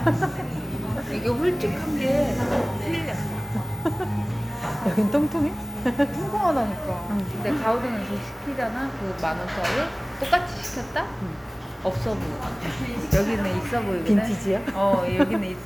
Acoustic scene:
cafe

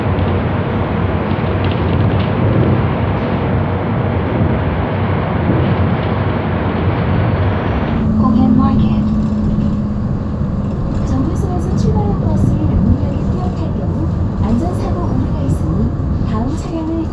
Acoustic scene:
bus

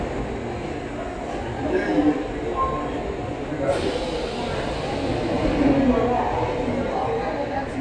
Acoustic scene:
subway station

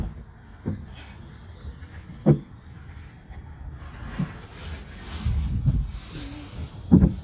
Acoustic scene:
park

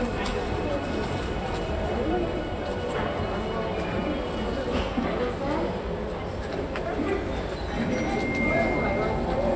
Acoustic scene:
subway station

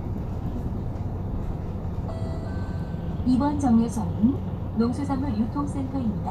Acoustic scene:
bus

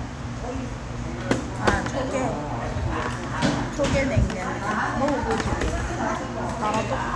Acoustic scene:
restaurant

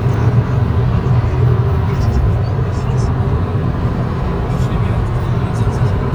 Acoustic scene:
car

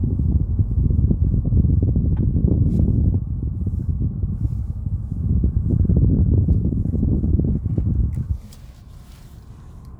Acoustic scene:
car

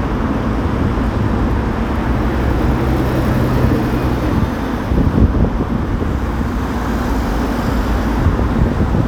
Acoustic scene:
street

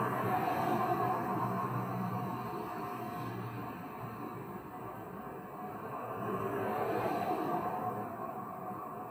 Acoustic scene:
street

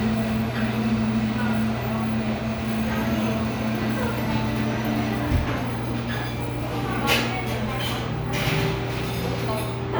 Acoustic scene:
cafe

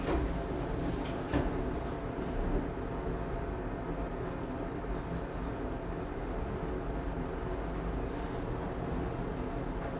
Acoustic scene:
elevator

